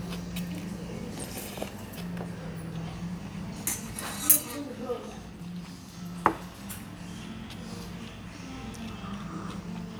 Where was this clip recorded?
in a restaurant